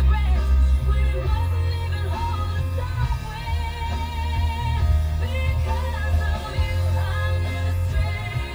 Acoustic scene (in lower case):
car